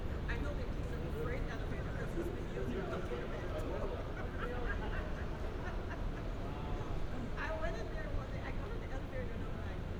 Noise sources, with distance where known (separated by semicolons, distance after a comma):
person or small group talking, near